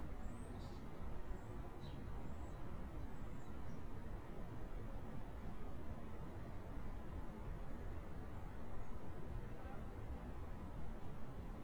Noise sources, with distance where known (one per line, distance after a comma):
background noise